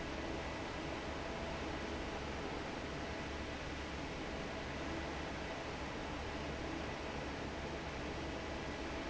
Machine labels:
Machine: fan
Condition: normal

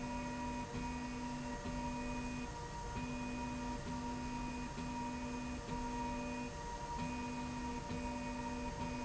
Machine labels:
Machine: slide rail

